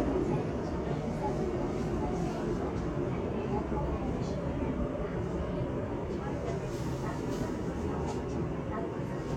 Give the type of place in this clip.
subway train